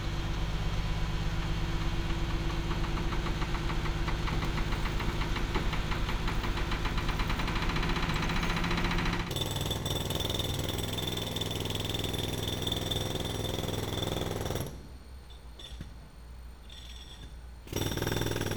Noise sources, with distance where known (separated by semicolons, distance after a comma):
unidentified impact machinery